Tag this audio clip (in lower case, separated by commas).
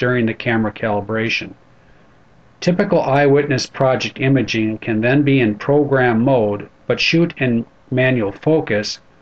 speech